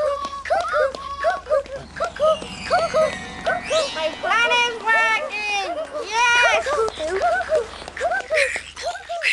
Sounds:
speech

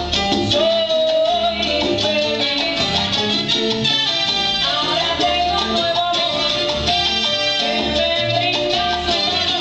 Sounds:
salsa music

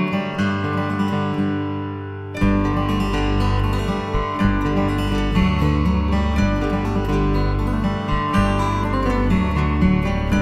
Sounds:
music

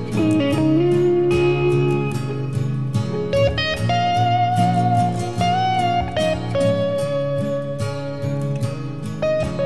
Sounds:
plucked string instrument
slide guitar
musical instrument
guitar
music

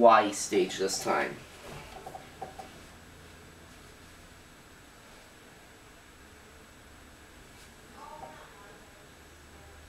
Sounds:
speech

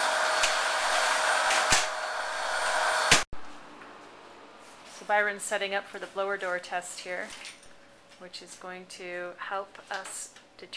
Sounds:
speech

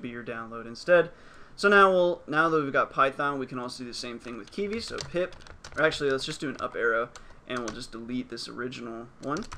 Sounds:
typing

